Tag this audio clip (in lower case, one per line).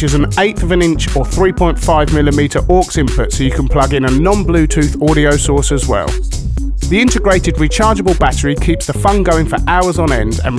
music
speech